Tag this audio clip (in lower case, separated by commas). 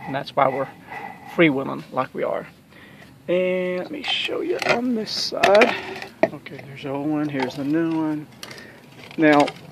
speech